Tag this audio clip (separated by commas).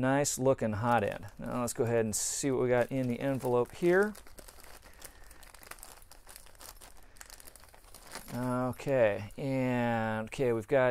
inside a small room, Speech, Crumpling